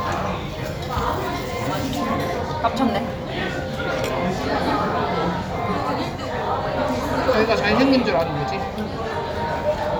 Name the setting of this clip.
crowded indoor space